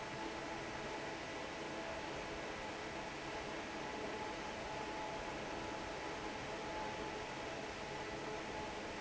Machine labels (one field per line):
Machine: fan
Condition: normal